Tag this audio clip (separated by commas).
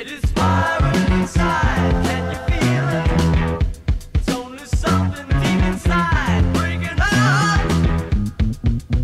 Music